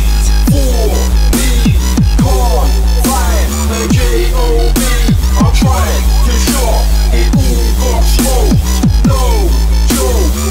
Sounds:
Music, Drum and bass

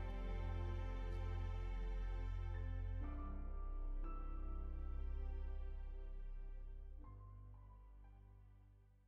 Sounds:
Background music

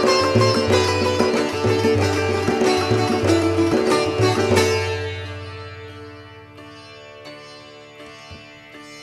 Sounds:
Sitar, Music

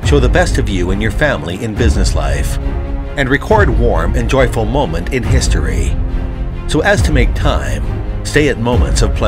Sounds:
Music, Speech

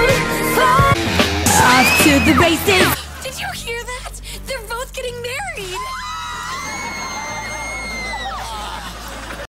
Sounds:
Speech, Music

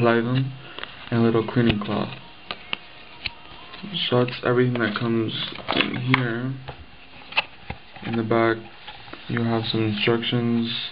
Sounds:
inside a small room, Music, Speech

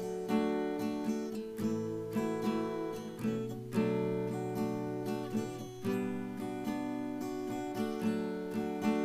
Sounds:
Guitar, Plucked string instrument, Acoustic guitar, Musical instrument, Music

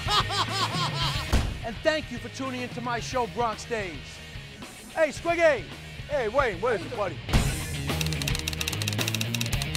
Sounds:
Music, Speech

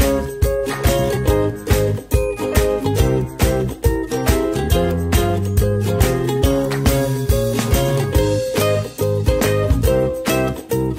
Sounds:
Music

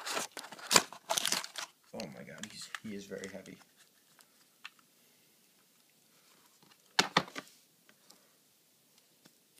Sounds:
Speech

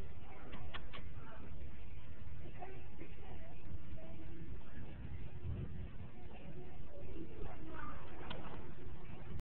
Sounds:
Speech

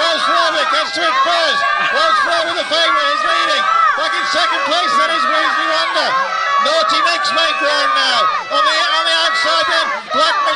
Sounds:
Speech

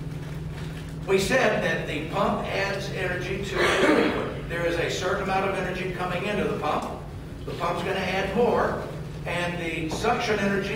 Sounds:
Speech

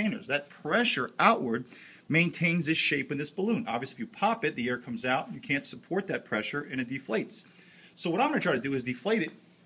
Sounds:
Speech

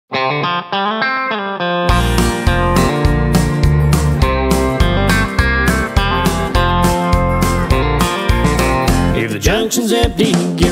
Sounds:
Singing, Effects unit, Music

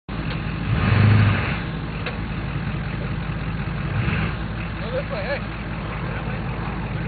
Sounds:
Speech, Vehicle, Truck

